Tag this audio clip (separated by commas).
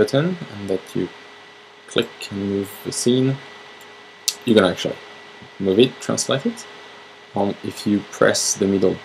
Speech